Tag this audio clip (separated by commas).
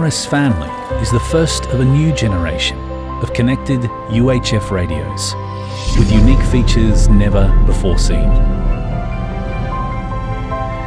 Speech, Music